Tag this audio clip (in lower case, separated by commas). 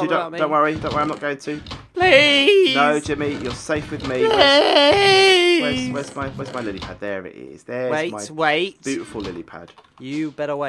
speech, inside a small room